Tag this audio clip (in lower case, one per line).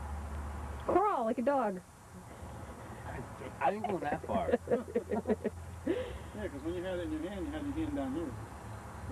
speech